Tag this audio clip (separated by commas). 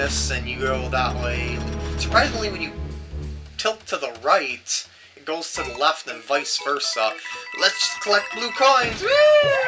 Music, Speech